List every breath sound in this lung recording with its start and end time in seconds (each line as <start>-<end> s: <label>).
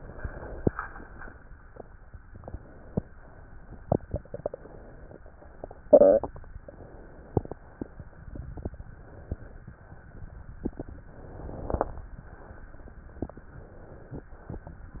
0.00-0.68 s: inhalation
0.68-1.45 s: exhalation
2.29-3.13 s: inhalation
3.15-4.14 s: exhalation
4.26-5.19 s: inhalation
5.23-6.45 s: exhalation
6.59-7.52 s: inhalation
7.60-8.79 s: exhalation
8.87-9.73 s: inhalation
9.81-11.04 s: exhalation
11.12-11.98 s: inhalation
12.00-13.24 s: exhalation
13.31-14.26 s: inhalation
14.46-15.00 s: exhalation